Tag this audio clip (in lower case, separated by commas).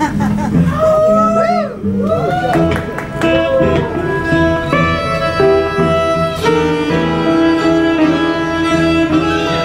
string section, musical instrument, guitar, music